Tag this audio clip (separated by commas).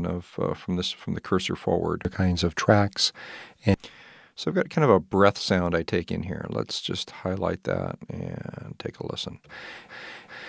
Speech